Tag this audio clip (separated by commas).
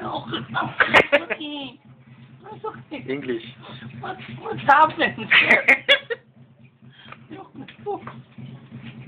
Speech